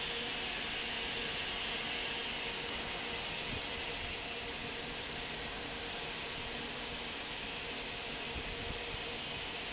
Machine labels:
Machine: fan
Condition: normal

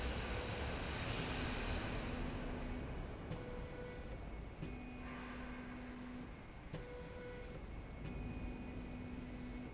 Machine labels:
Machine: slide rail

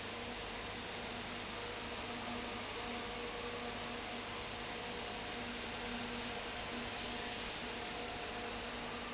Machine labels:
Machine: fan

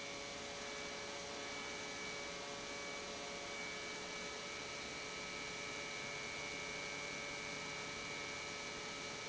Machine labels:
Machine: pump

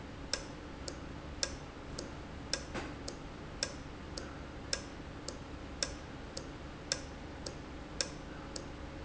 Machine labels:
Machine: valve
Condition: normal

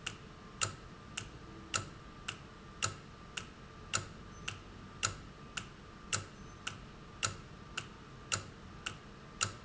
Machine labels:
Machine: valve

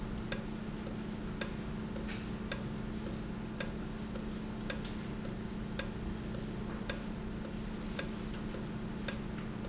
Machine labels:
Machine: valve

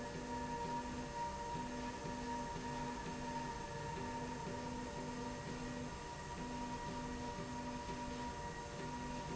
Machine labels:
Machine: slide rail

